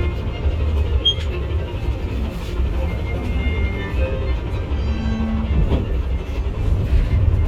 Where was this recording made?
on a bus